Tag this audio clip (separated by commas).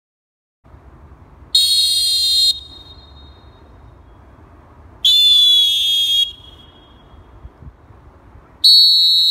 Whistle